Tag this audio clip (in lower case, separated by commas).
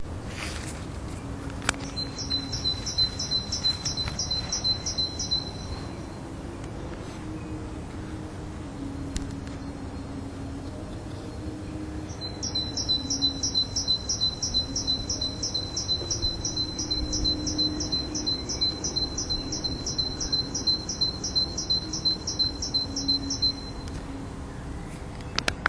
wild animals, bird, animal, bird song